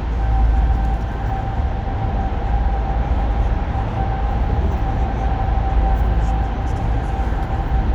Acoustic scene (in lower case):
car